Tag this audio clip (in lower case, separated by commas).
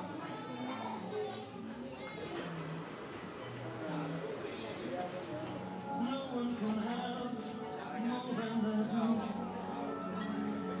speech